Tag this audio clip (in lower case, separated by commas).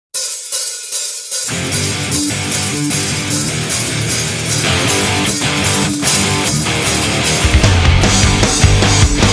heavy metal, hi-hat